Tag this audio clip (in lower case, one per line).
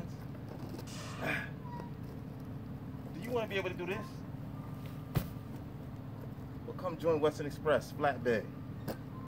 vehicle
speech